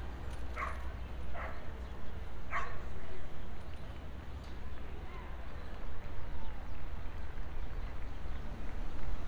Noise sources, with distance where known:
dog barking or whining, near

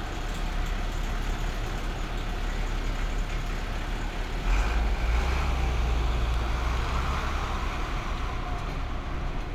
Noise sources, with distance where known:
large-sounding engine, near

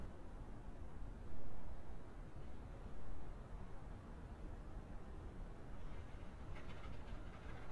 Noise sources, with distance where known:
background noise

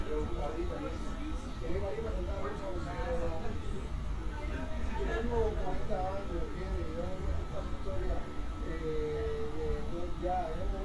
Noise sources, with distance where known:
unidentified human voice

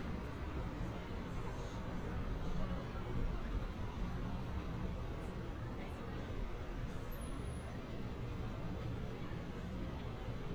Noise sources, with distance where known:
person or small group talking, far

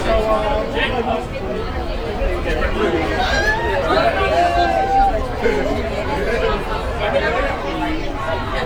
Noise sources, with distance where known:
large crowd, near

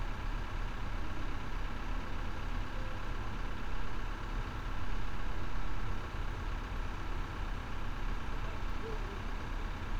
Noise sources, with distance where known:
large-sounding engine, near

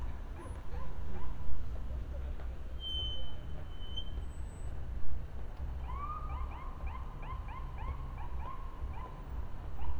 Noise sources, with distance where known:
siren, far

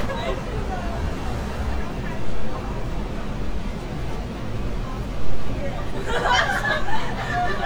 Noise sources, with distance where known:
person or small group talking, near

